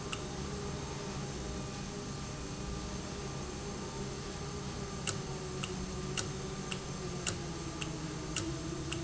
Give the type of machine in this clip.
valve